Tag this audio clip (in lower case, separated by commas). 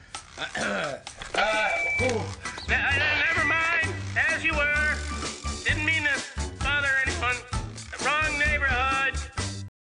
music, speech